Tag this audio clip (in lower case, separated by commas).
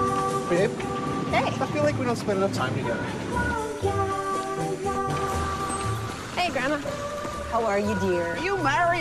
speech, outside, urban or man-made, outside, rural or natural, music